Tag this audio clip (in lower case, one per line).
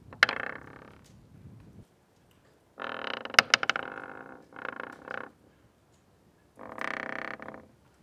home sounds
door